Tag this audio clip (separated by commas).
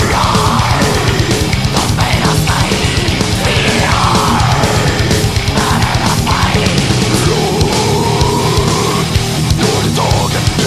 Music